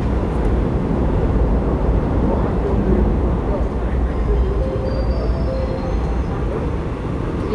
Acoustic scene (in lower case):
subway train